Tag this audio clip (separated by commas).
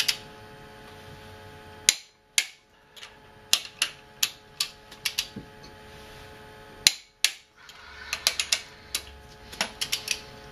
inside a small room